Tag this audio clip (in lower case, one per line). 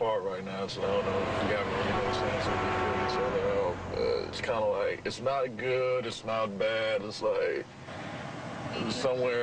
speech